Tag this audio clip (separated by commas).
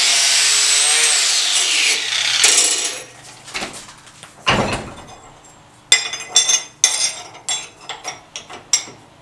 forging swords